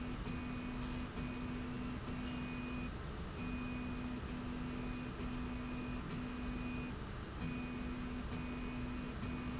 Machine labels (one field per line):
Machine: slide rail